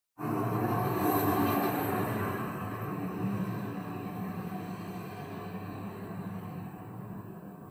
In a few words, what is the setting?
street